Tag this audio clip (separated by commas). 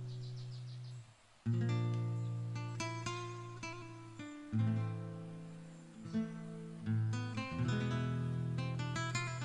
Music